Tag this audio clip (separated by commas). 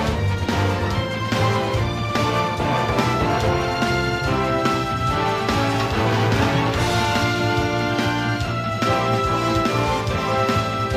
Music